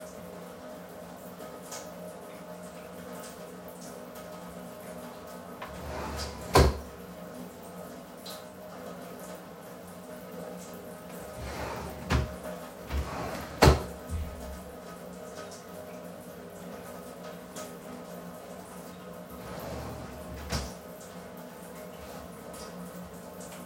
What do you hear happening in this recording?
Water is running. I open a drawer and then close it again. I open another drawer and then close it again.